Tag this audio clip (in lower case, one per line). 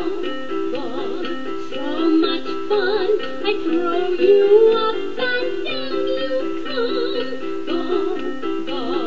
music